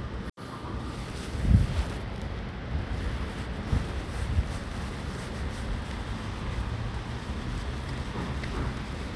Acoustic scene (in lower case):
residential area